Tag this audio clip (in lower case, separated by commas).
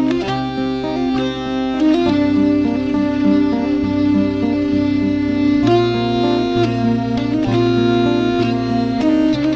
acoustic guitar, plucked string instrument, music, strum, musical instrument, guitar